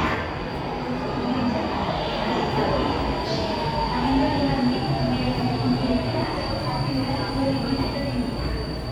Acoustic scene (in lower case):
subway station